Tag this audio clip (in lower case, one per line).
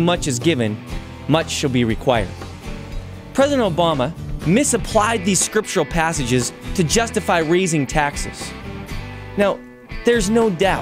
male speech
speech
music